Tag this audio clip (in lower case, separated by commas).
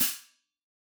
hi-hat, musical instrument, cymbal, percussion, music